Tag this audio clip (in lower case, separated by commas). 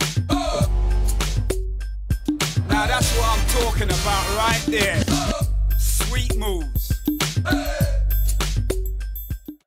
speech, music